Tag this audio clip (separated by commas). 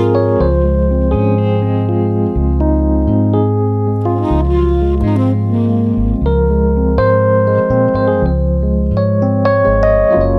Organ